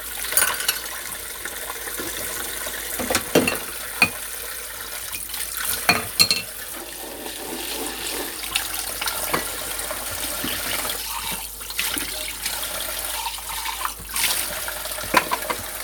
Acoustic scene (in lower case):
kitchen